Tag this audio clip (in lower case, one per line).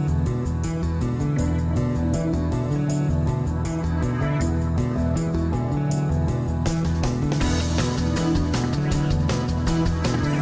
music